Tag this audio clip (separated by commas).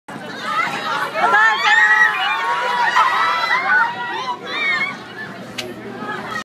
Speech